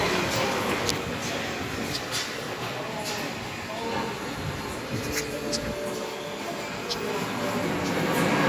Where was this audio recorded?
in a subway station